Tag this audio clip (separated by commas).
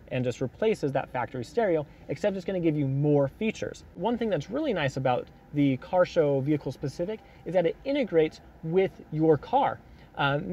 Speech